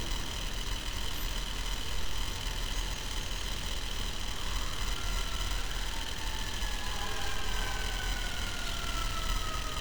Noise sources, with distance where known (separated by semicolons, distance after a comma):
siren, far